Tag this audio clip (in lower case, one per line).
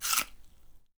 mastication